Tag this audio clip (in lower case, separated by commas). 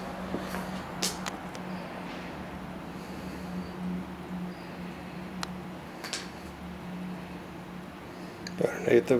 speech